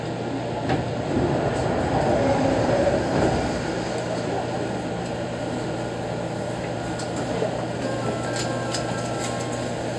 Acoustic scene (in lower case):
subway train